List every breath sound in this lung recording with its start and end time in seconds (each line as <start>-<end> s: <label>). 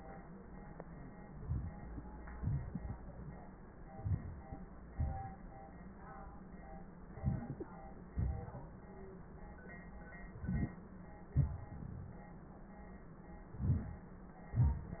1.39-2.24 s: inhalation
2.33-3.42 s: exhalation
3.95-4.59 s: inhalation
4.92-5.43 s: exhalation
7.12-7.78 s: inhalation
8.14-8.80 s: exhalation
10.36-10.80 s: inhalation
11.35-12.30 s: exhalation
13.53-14.14 s: inhalation